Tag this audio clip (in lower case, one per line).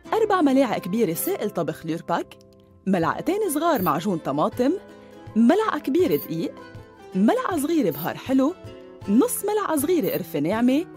music
speech